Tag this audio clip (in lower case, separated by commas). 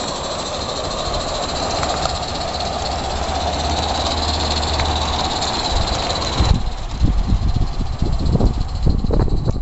train, rail transport, railroad car